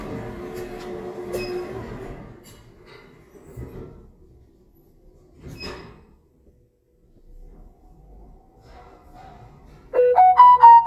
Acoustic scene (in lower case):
elevator